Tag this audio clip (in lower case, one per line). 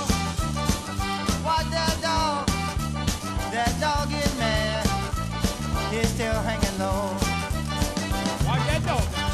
music